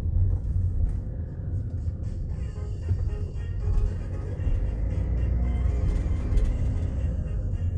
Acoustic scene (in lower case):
car